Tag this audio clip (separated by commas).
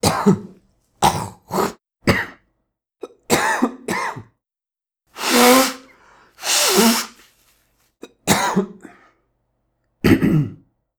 Cough, Respiratory sounds